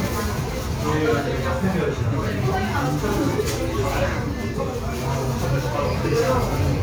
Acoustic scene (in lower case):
crowded indoor space